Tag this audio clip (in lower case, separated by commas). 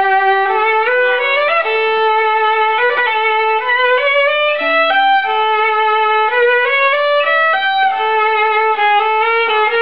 music, musical instrument, violin